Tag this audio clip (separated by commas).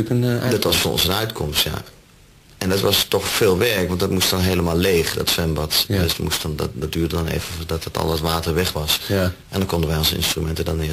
Speech